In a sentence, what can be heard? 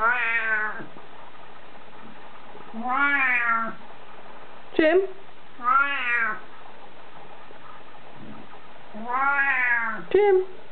A cat is meowing and a woman speaks